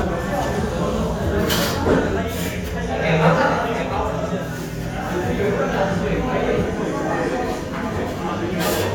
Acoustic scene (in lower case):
crowded indoor space